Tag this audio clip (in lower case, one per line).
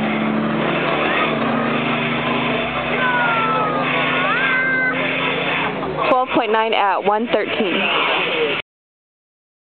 speech